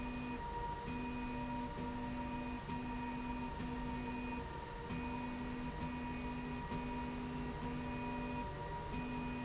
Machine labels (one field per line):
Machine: slide rail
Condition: normal